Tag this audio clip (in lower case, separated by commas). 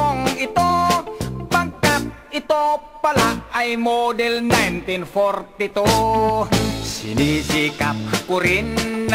funny music, music